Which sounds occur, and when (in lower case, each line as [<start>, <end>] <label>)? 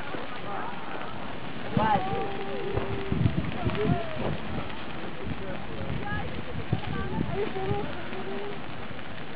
[0.00, 9.35] eruption
[0.00, 9.35] hubbub
[0.00, 9.35] wind noise (microphone)